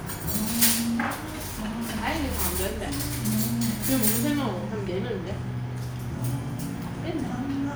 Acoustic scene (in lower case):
restaurant